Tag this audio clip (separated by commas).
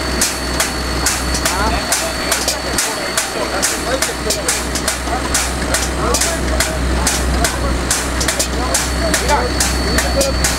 Speech